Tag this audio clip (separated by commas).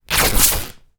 Tearing